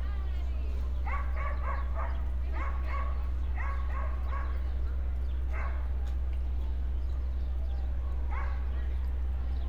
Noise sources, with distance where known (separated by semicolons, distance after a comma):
person or small group talking; dog barking or whining